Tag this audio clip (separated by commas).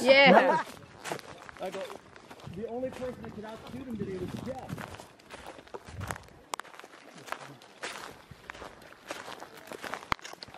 Speech